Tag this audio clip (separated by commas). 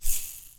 Rattle (instrument), Musical instrument, Percussion, Music